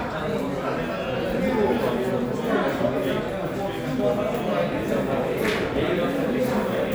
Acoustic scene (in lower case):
crowded indoor space